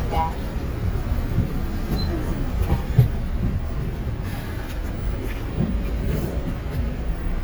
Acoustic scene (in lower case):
bus